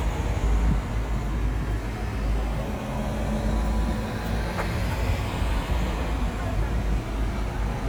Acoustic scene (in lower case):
street